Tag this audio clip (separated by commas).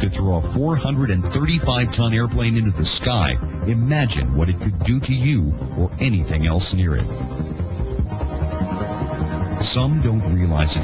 Speech